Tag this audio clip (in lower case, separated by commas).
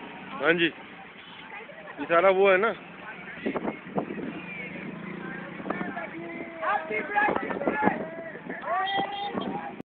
speech